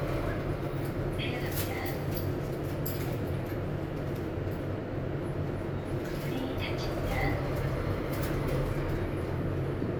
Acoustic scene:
elevator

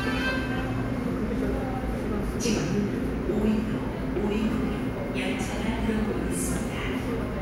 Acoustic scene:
subway station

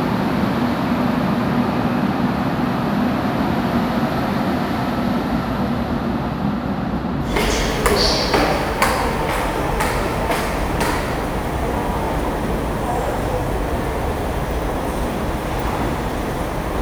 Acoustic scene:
subway station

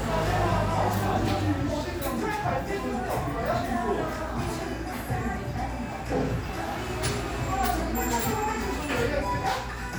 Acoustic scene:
crowded indoor space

